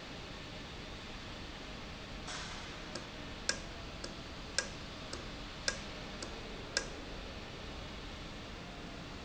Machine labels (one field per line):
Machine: valve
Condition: normal